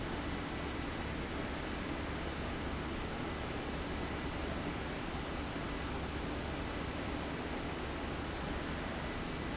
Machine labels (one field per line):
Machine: fan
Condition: abnormal